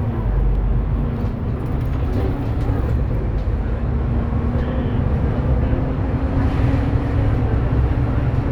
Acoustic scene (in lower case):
bus